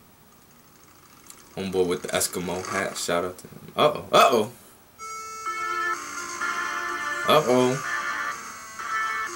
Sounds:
speech, inside a small room, music

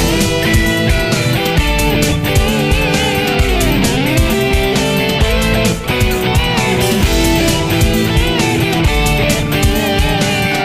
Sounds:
pop music, music, video game music

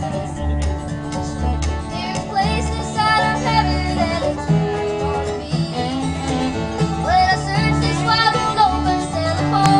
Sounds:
banjo, guitar, music, singing

